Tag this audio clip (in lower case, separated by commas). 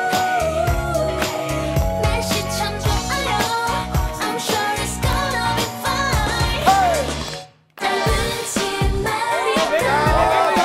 music